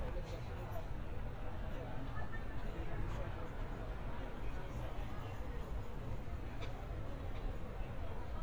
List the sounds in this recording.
person or small group talking